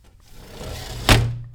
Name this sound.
glass window closing